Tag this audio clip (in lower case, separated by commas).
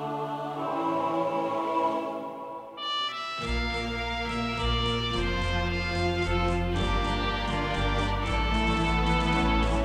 playing electronic organ